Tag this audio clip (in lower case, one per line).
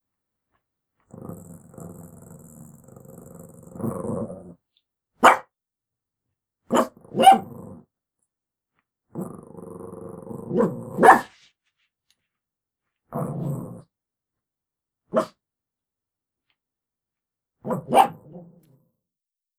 growling
animal